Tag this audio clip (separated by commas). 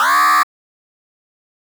Alarm